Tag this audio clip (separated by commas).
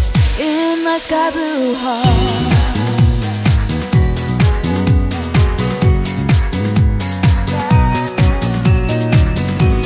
Music